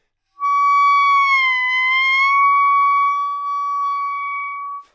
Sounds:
music
musical instrument
woodwind instrument

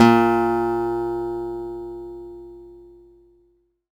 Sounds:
acoustic guitar
music
guitar
musical instrument
plucked string instrument

